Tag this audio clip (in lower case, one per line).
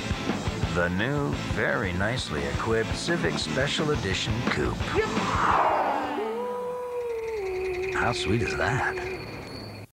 music
truck
car
speech
vehicle